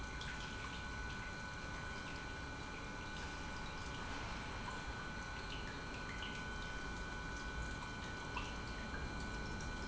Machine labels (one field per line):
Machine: pump